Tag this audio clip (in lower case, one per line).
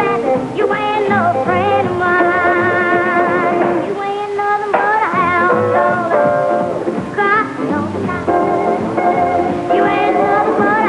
music